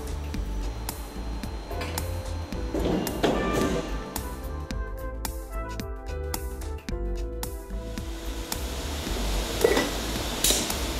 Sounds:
Music, inside a large room or hall

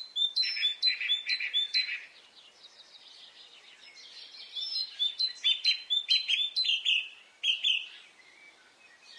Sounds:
mynah bird singing

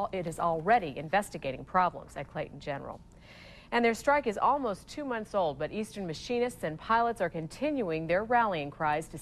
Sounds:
Speech, inside a small room

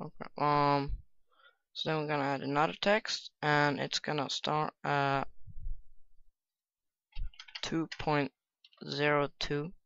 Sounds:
Speech

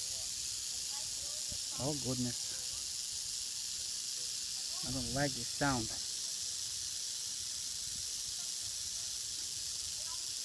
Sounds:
snake rattling

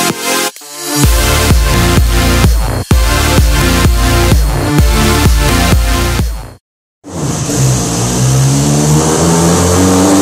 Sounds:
Car, Motor vehicle (road), Music, Vehicle

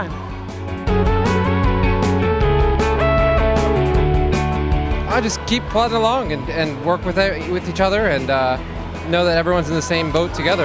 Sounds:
Music, Speech

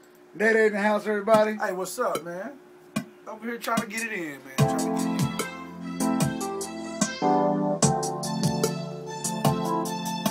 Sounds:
Music, Speech

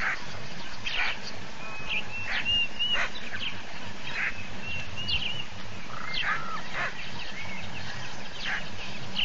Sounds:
Animal

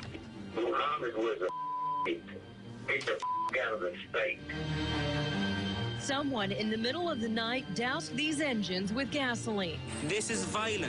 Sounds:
Speech, Music

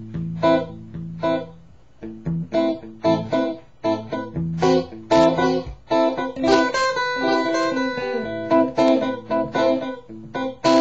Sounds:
Music, Effects unit, Electric guitar

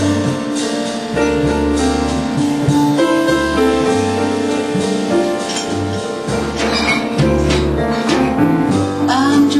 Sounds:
Tender music, Jazz, Music

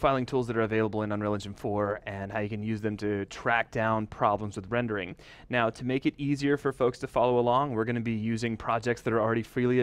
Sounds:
Speech

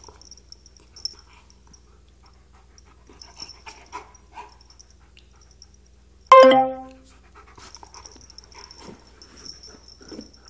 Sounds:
pets, Music, Animal, canids, Dog

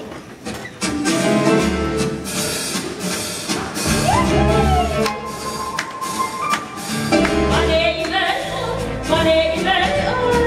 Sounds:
Music, Female singing

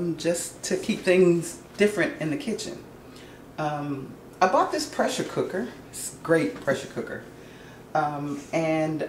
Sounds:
Speech

